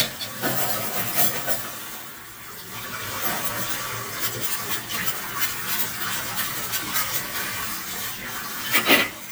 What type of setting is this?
kitchen